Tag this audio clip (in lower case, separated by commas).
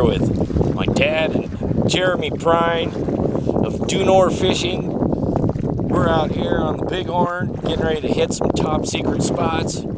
wind noise (microphone), wind